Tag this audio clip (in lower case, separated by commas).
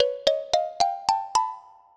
music, marimba, musical instrument, mallet percussion, percussion